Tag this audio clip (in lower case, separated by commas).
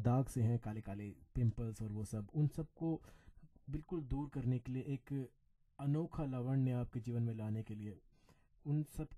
speech